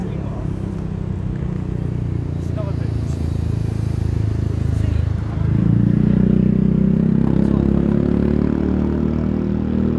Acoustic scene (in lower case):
street